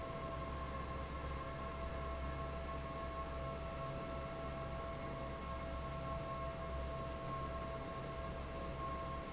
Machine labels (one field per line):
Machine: fan